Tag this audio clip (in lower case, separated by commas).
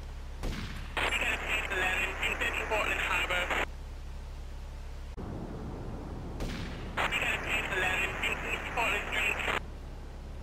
police radio chatter